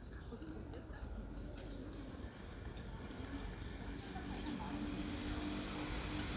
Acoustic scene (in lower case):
residential area